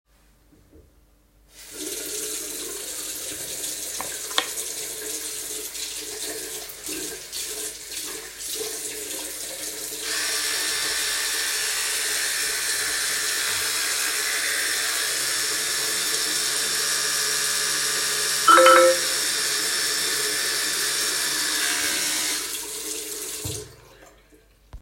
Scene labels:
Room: bathroom; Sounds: running water, phone ringing

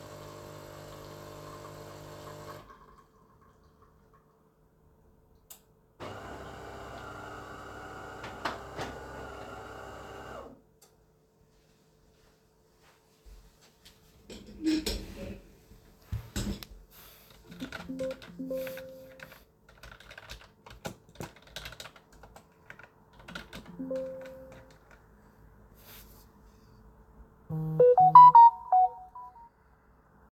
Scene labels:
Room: living room; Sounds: coffee machine, keyboard typing, phone ringing

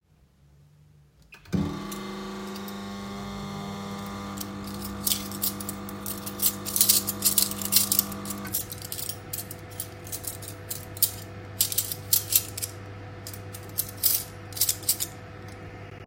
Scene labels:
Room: kitchen; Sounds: microwave, cutlery and dishes

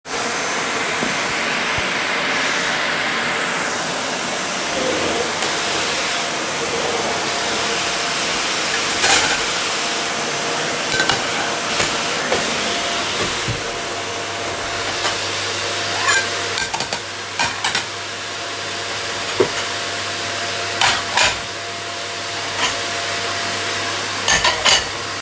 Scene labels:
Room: living room; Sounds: vacuum cleaner, cutlery and dishes

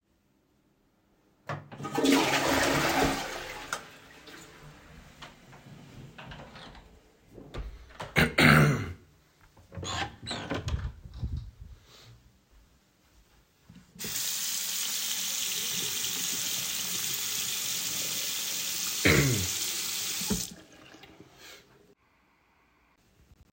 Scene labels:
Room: lavatory, bathroom; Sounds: toilet flushing, light switch, door (more than once), running water

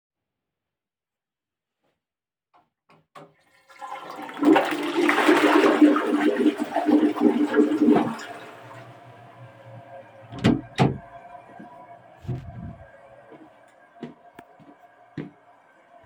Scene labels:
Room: bathroom; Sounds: toilet flushing, door (more than once), footsteps

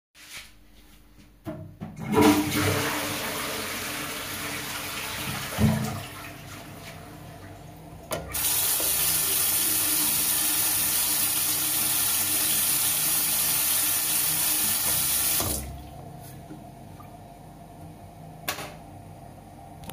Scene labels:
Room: bathroom; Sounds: toilet flushing, running water, light switch

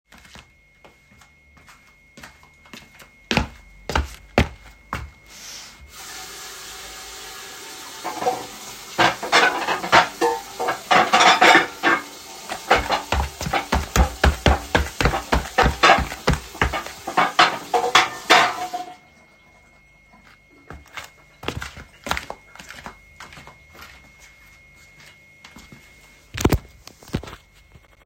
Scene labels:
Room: kitchen; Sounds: footsteps, running water, cutlery and dishes

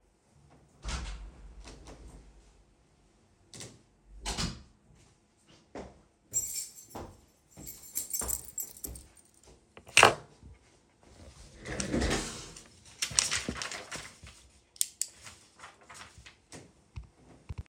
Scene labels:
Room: bedroom; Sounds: door (more than once), footsteps, keys

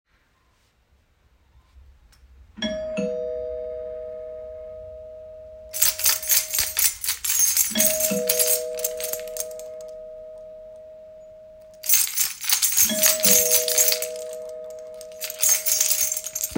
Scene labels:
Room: living room; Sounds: bell ringing, keys

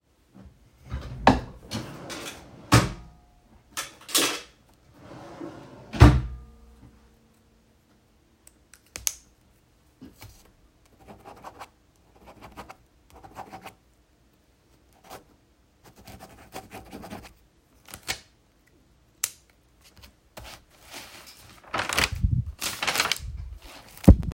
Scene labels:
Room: bedroom; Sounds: wardrobe or drawer (more than once)

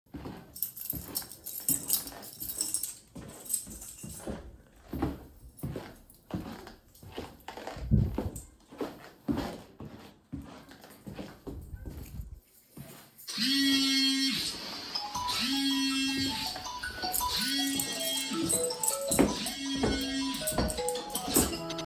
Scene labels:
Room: hallway; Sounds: footsteps, keys, phone ringing

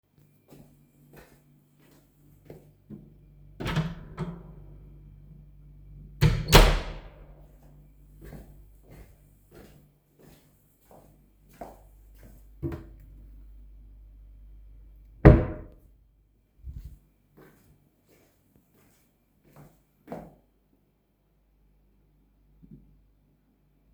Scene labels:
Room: kitchen; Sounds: footsteps, door (more than once), wardrobe or drawer (more than once)

